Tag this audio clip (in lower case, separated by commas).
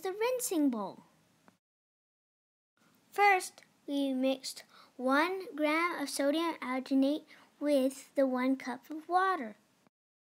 speech